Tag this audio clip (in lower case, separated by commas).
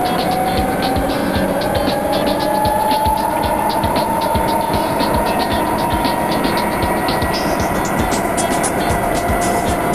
underground